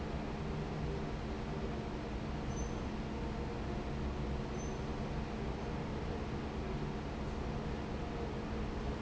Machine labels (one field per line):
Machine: fan